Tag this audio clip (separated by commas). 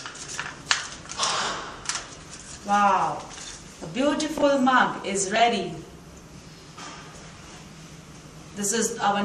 woman speaking, Speech